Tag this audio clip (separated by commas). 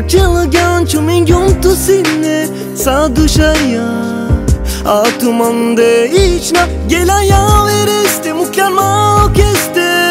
Blues, Music